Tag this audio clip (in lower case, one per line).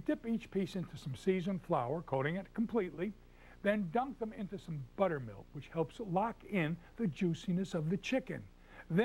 speech